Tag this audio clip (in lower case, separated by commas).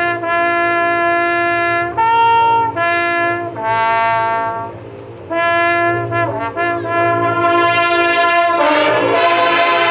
music, outside, urban or man-made